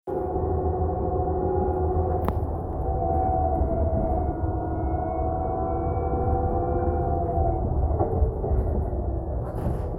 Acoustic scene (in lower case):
bus